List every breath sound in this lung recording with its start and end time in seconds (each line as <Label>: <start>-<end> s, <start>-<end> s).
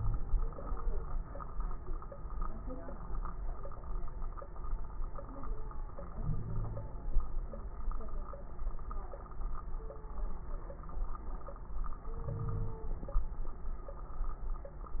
Inhalation: 6.14-7.04 s, 12.22-12.88 s
Wheeze: 6.16-7.05 s, 12.22-12.88 s